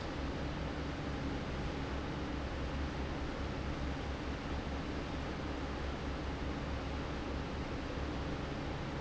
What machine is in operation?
fan